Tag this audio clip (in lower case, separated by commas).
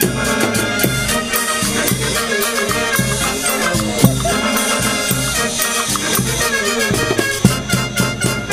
music, brass instrument, percussion, musical instrument